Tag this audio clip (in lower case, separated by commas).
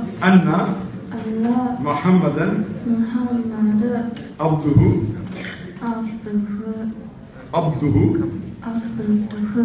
speech, inside a large room or hall, man speaking